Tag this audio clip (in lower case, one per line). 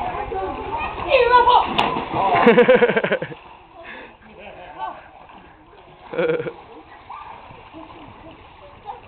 splashing water
splash
speech